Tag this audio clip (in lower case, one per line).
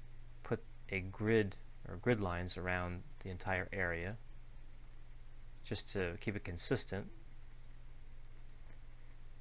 speech